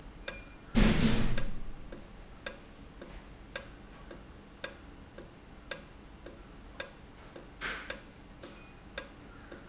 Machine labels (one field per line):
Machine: valve